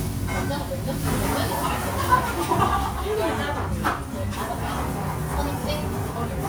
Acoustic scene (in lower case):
restaurant